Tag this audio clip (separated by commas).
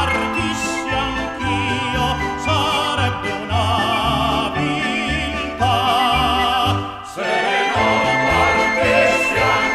Music